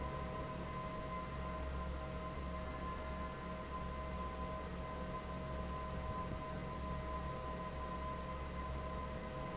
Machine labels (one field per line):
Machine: fan